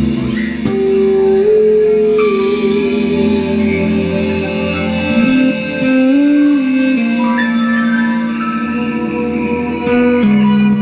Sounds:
Music

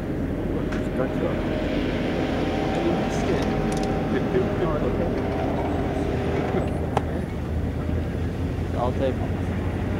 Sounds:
Speech

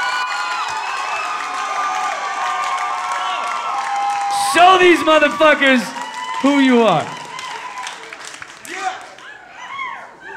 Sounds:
Applause, Speech

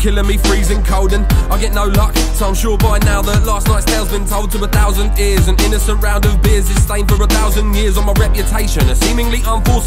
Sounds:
Music

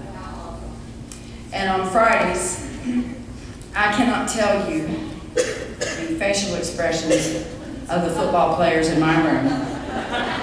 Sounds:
Speech

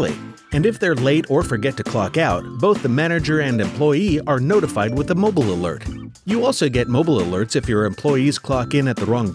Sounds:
Music, Speech

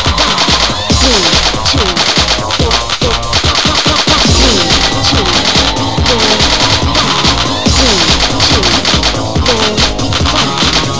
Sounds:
Techno, Music, Electronic music

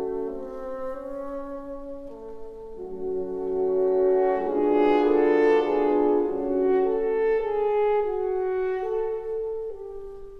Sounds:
playing french horn

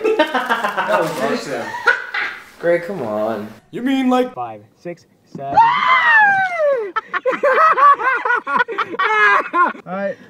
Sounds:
Laughter

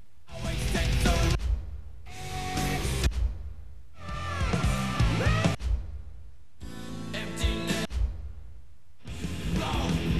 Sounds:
Musical instrument, Guitar, Music, Plucked string instrument, Bass guitar

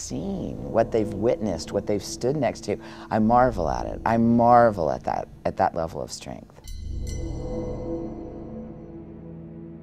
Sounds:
Music, Speech

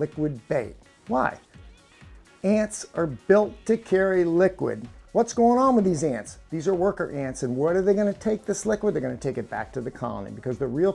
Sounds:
Speech, Music

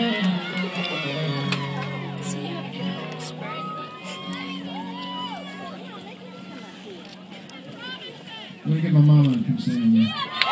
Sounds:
Speech, Music

